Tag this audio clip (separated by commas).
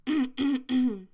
Respiratory sounds, Cough